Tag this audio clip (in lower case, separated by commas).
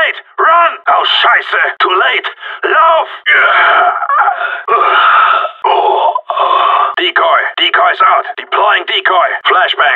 speech